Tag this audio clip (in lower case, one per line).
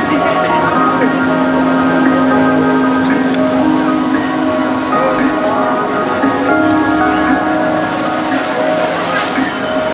music
stream